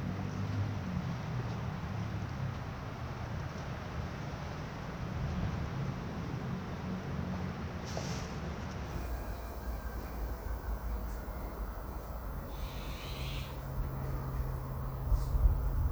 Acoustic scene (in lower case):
residential area